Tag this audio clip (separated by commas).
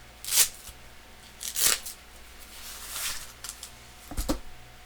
home sounds